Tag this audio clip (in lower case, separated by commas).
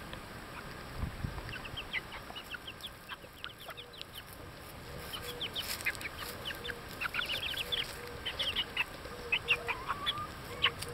rooster, livestock, bird